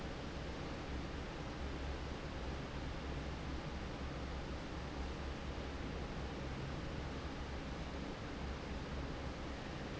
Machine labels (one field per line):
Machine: fan